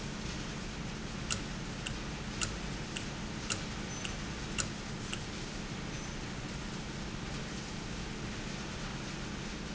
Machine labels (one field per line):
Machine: valve